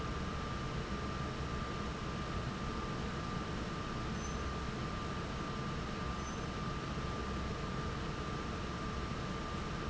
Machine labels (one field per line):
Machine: fan